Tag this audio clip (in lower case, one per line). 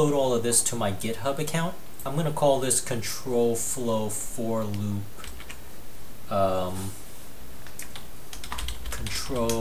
typing